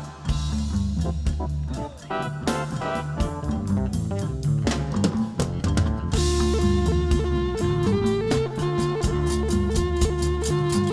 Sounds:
Music

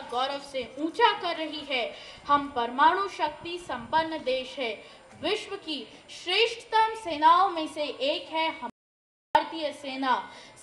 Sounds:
Child speech, monologue, Female speech, Speech

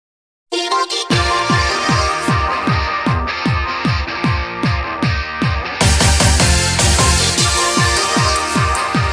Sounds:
Music, Soundtrack music

